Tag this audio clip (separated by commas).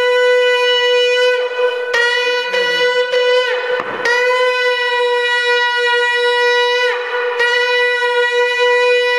Shofar, Wind instrument